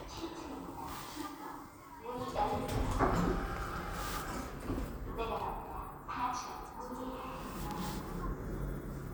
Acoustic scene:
elevator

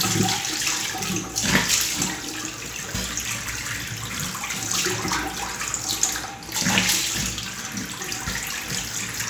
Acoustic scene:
restroom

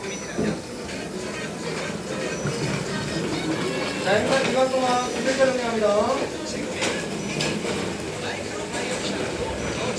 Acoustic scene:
crowded indoor space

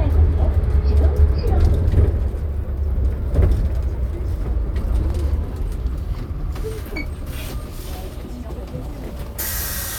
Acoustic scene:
bus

